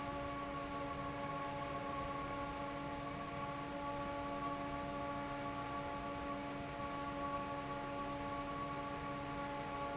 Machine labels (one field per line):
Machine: fan